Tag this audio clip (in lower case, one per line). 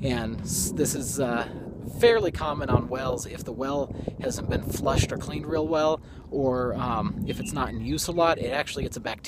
speech